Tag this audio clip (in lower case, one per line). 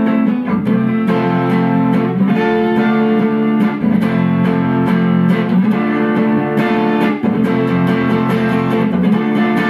strum
music
guitar
plucked string instrument
acoustic guitar
musical instrument